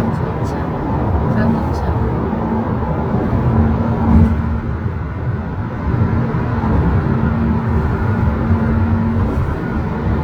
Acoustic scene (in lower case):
car